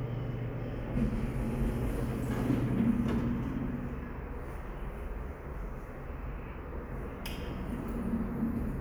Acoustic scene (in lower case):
elevator